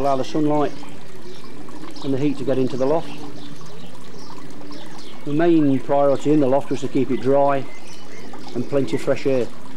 Water and birds chirping while man speaks